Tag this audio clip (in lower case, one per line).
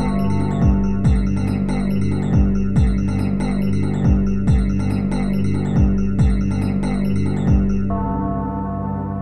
music